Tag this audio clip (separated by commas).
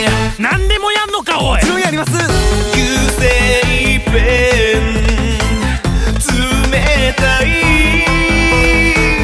Speech, Music